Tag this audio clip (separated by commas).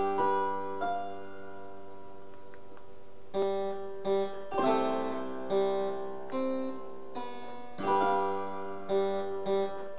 playing harpsichord